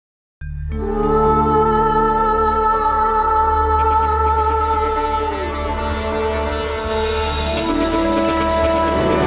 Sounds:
music
sitar

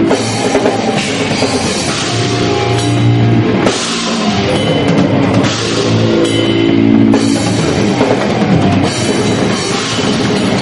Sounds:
drum kit
musical instrument
music
heavy metal
rock music
drum

